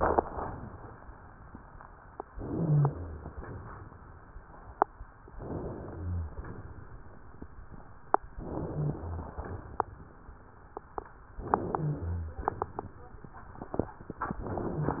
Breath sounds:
2.33-3.38 s: inhalation
2.56-3.30 s: wheeze
3.40-4.04 s: exhalation
5.35-6.40 s: inhalation
5.96-6.34 s: wheeze
6.38-7.02 s: exhalation
8.35-9.39 s: inhalation
8.71-9.36 s: wheeze
9.39-10.04 s: exhalation
11.42-12.47 s: inhalation
11.76-12.41 s: wheeze
12.45-13.09 s: exhalation

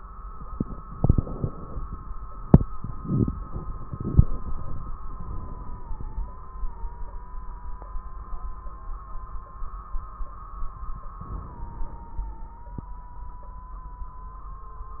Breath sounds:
5.08-6.38 s: inhalation
5.08-6.38 s: crackles
11.19-12.71 s: inhalation

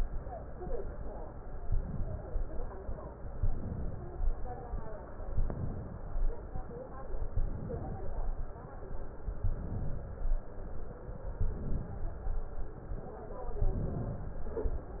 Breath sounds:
1.63-2.57 s: inhalation
3.41-4.26 s: inhalation
5.35-6.20 s: inhalation
7.34-8.00 s: inhalation
9.47-10.38 s: inhalation
13.66-14.47 s: inhalation

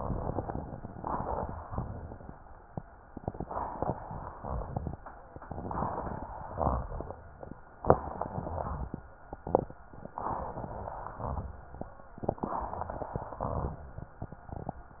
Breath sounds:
0.89-1.77 s: inhalation
0.89-1.77 s: crackles
1.75-2.37 s: exhalation
1.78-2.37 s: crackles
3.09-3.97 s: inhalation
3.09-3.97 s: crackles
4.02-4.95 s: exhalation
4.34-4.73 s: rhonchi
5.45-6.32 s: inhalation
5.45-6.32 s: crackles
6.51-6.91 s: exhalation
8.01-8.88 s: inhalation
8.01-8.88 s: crackles
10.27-11.14 s: inhalation
10.27-11.14 s: crackles
11.21-11.61 s: exhalation
11.21-11.61 s: crackles
12.45-13.32 s: inhalation
12.45-13.32 s: crackles
13.43-13.83 s: exhalation
13.43-13.83 s: crackles

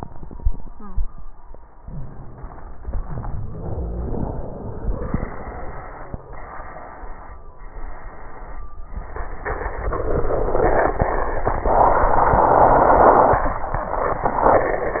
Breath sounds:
1.81-2.82 s: inhalation
2.81-3.55 s: exhalation
2.81-3.55 s: crackles

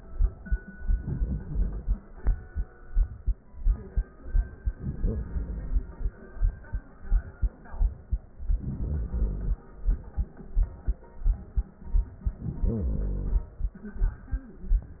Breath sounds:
0.74-2.04 s: inhalation
4.72-6.17 s: inhalation
8.27-9.73 s: inhalation
12.28-13.73 s: inhalation

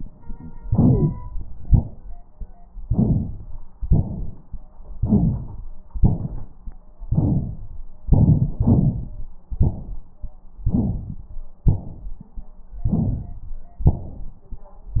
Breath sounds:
0.59-1.16 s: inhalation
0.89-1.08 s: wheeze
1.63-2.14 s: exhalation
2.84-3.64 s: rhonchi
2.86-3.66 s: inhalation
3.79-4.61 s: exhalation
4.93-5.73 s: inhalation
4.93-5.73 s: rhonchi
5.95-6.75 s: exhalation
7.11-7.86 s: rhonchi
7.11-7.89 s: inhalation
8.10-8.60 s: exhalation
10.62-11.33 s: inhalation
10.62-11.33 s: rhonchi
11.72-12.43 s: exhalation
12.86-13.53 s: inhalation
12.86-13.53 s: rhonchi
13.88-14.63 s: exhalation

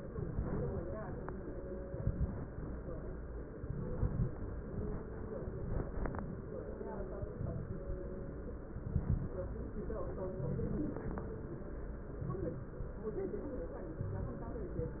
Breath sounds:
0.06-0.85 s: inhalation
0.06-0.85 s: crackles
1.79-2.58 s: inhalation
1.79-2.58 s: crackles
3.55-4.35 s: inhalation
3.55-4.35 s: crackles
5.53-6.33 s: inhalation
5.53-6.33 s: crackles
7.16-7.96 s: inhalation
7.16-7.96 s: crackles
8.72-9.38 s: inhalation
8.72-9.38 s: crackles
10.36-11.02 s: inhalation
10.36-11.02 s: crackles
12.18-12.84 s: inhalation
12.18-12.84 s: crackles

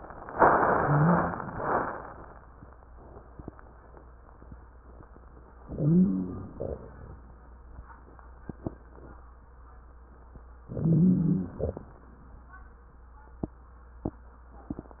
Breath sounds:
0.67-1.37 s: wheeze
5.64-6.55 s: inhalation
5.64-6.55 s: wheeze
6.55-7.17 s: exhalation
10.64-11.55 s: inhalation
10.64-11.55 s: wheeze
11.55-11.97 s: exhalation

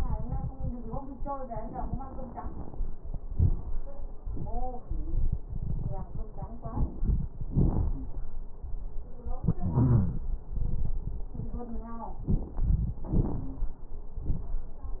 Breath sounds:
3.28-3.77 s: inhalation
3.28-3.77 s: crackles
4.26-4.82 s: exhalation
4.26-4.82 s: crackles
6.66-7.29 s: inhalation
6.66-7.29 s: crackles
7.53-8.22 s: exhalation
7.53-8.22 s: crackles
9.64-10.28 s: wheeze
12.25-13.00 s: inhalation
12.25-13.00 s: crackles
13.14-13.78 s: exhalation
13.14-13.78 s: crackles

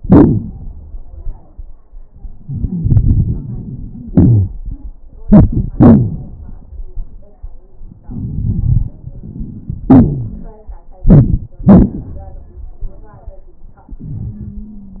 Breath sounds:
2.44-4.10 s: inhalation
2.44-4.10 s: crackles
4.13-4.92 s: exhalation
4.13-4.92 s: crackles
8.04-9.88 s: inhalation
8.04-9.88 s: crackles
9.88-10.68 s: exhalation
9.88-10.68 s: crackles
14.31-15.00 s: wheeze

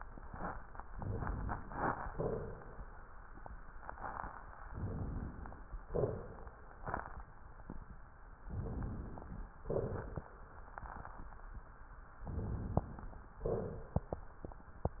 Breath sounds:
0.89-2.04 s: inhalation
2.08-3.08 s: exhalation
4.67-5.74 s: inhalation
5.83-6.62 s: exhalation
5.83-6.62 s: crackles
6.80-7.30 s: exhalation
6.80-7.30 s: crackles
8.51-9.51 s: inhalation
9.72-10.41 s: exhalation
9.72-10.41 s: crackles
10.76-11.29 s: exhalation
10.76-11.29 s: crackles
12.29-13.27 s: exhalation
12.29-13.27 s: crackles
13.46-14.21 s: exhalation

